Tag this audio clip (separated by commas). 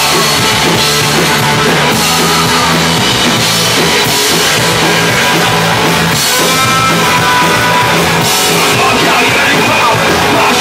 Music, Speech